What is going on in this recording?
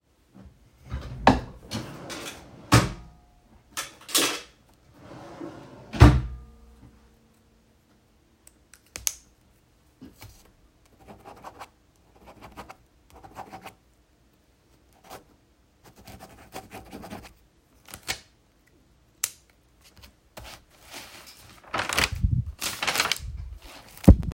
I opened the drawer, took a pen, started writing and turned the page